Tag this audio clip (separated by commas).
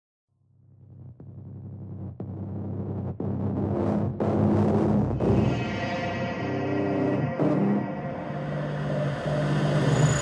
Music